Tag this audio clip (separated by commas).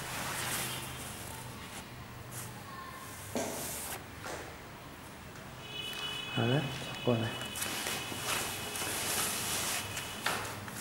Speech